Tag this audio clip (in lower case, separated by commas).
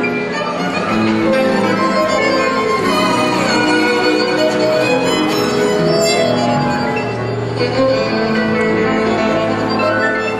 music, musical instrument, violin